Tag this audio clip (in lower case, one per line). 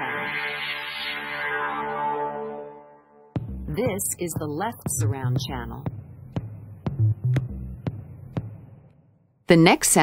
music
sound effect
speech
television